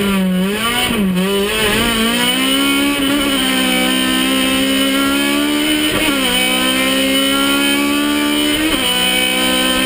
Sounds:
vehicle, motor vehicle (road), car

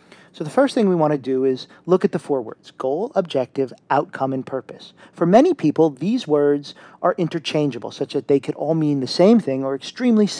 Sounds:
speech

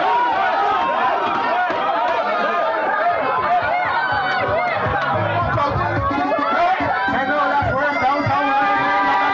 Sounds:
chatter, crowd, music, speech

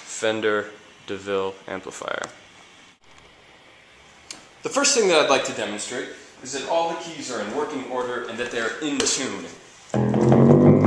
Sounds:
speech

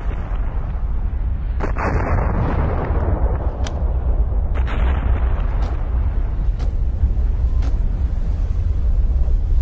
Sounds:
volcano explosion

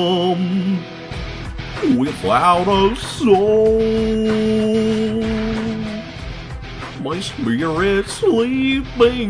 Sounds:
music

